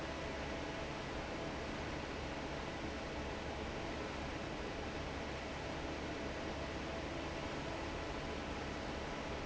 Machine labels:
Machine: fan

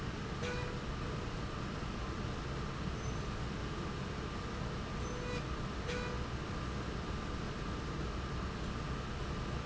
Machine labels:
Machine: slide rail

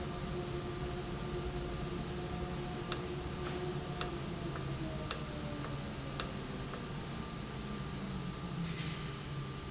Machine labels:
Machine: valve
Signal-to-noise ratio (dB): -6 dB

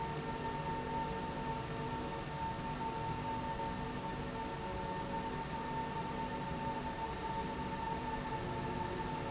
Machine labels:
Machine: slide rail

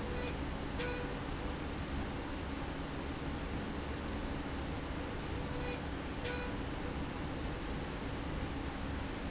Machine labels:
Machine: slide rail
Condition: normal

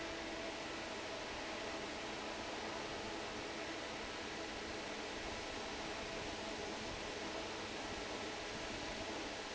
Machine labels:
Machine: fan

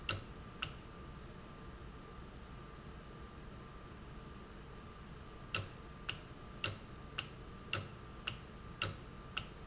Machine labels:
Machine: valve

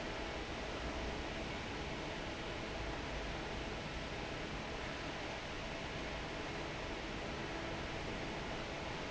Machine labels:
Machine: fan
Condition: normal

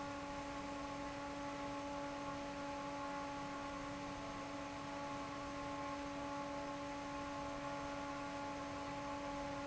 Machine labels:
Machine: fan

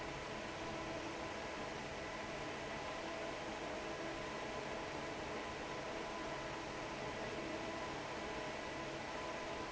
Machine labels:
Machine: fan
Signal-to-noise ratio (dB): 6 dB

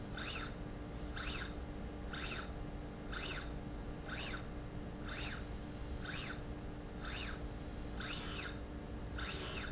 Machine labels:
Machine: slide rail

